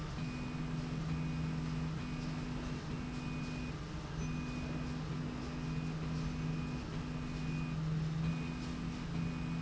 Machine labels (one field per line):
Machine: slide rail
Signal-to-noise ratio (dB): -6 dB